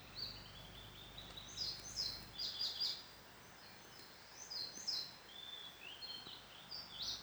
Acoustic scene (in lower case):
park